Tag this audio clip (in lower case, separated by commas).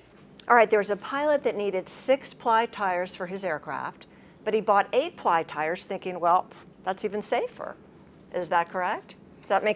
speech